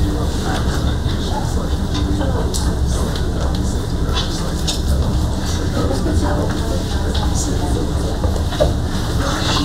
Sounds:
speech

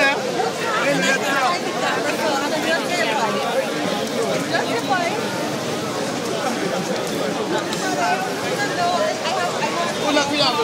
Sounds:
speech

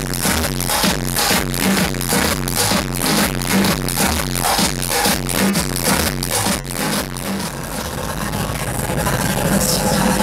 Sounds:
music
disco

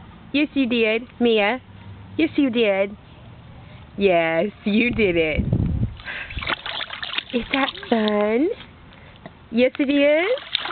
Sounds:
speech
water

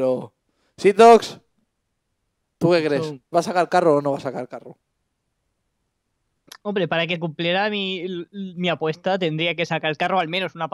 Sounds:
speech

